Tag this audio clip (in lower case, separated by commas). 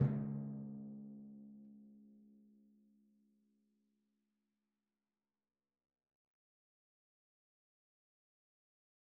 music, musical instrument, drum, percussion